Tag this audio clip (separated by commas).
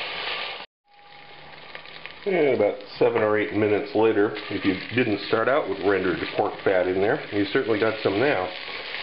Frying (food), Sizzle